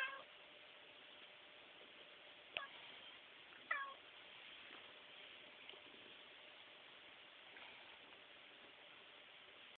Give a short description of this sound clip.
A cat is meowing, and soft electronic humming is present in the background